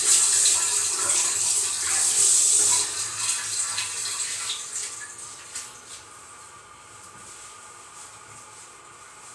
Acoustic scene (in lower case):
restroom